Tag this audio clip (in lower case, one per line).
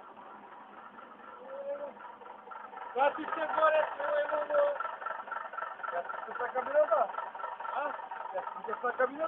speech
truck
vehicle